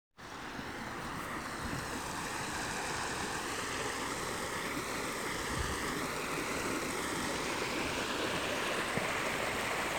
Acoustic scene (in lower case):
park